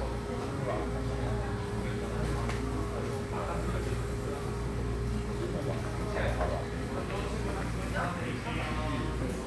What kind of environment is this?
cafe